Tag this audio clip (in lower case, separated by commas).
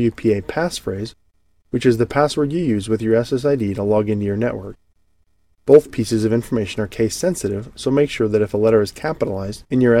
speech